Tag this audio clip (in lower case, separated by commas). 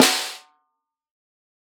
music, musical instrument, drum, percussion, snare drum